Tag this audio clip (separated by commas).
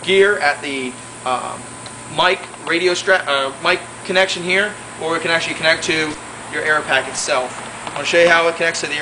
Speech